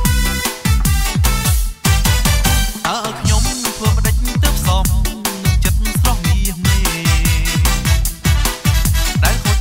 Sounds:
Music, Tender music

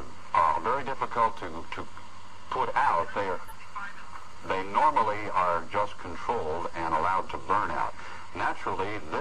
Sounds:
Speech

